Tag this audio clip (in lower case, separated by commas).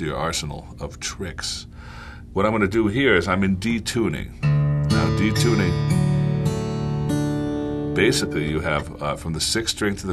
music, speech, steel guitar